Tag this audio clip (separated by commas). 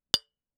clink, Glass